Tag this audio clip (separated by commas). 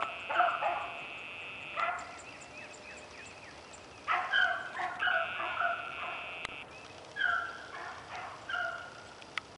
Dog, Animal, pets